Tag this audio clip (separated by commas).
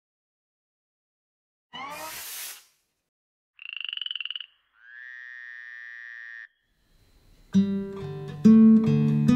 Acoustic guitar, Plucked string instrument, Music, Musical instrument, Guitar